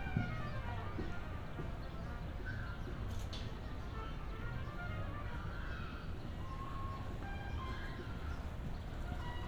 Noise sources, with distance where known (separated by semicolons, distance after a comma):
music from a fixed source